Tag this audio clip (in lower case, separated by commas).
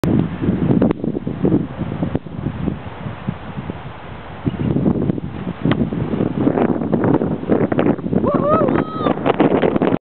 wind noise (microphone), wind